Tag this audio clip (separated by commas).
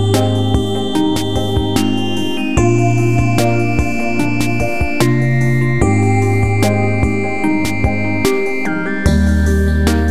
Music